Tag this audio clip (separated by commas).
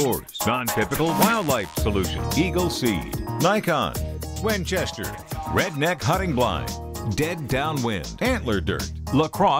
Music, Speech